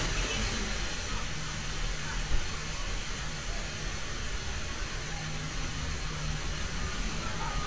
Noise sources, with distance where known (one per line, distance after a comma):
unidentified human voice, far